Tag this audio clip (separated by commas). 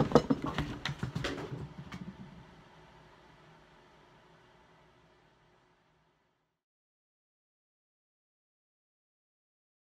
mouse clicking